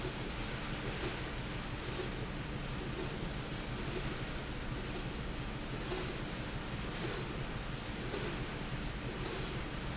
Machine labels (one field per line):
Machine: slide rail